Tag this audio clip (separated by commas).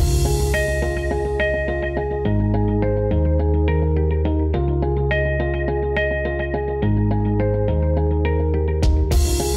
Music